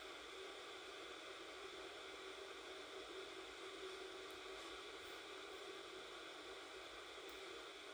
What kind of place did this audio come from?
subway train